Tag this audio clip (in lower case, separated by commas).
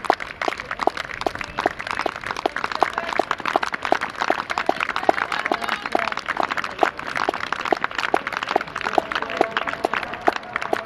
speech